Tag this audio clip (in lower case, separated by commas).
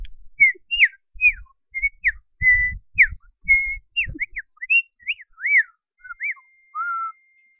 bird, animal, chirp, wild animals, bird vocalization